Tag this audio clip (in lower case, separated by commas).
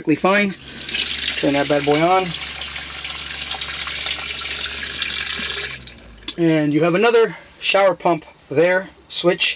speech